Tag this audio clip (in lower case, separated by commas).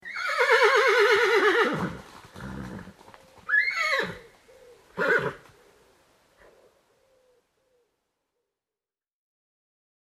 livestock, animal